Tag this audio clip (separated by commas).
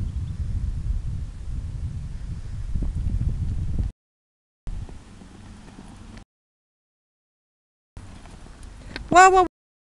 Clip-clop, horse clip-clop